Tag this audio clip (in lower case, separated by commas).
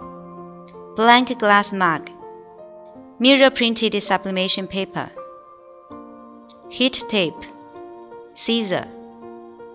music, speech